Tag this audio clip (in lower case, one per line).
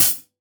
hi-hat
percussion
cymbal
musical instrument
music